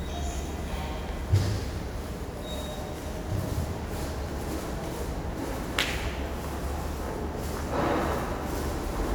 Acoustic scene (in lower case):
subway station